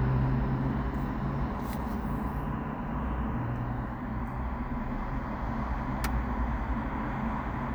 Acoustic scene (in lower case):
residential area